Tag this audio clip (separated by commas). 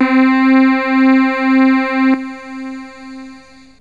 Music, Keyboard (musical), Musical instrument